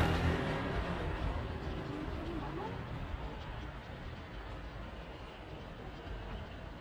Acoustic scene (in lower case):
residential area